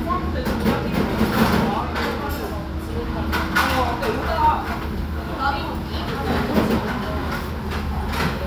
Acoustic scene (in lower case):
restaurant